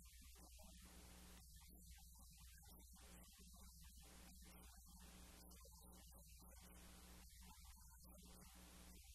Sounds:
Speech

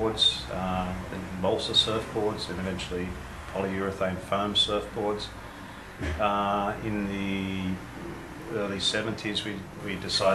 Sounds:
Speech

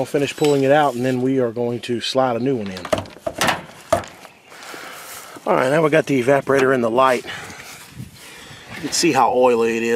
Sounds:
Speech

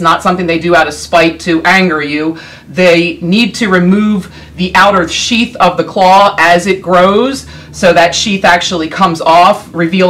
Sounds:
Speech

